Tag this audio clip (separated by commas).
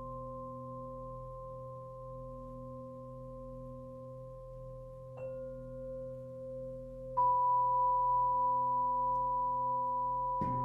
Music